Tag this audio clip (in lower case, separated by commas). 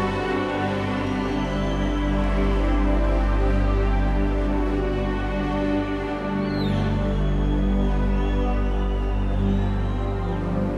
music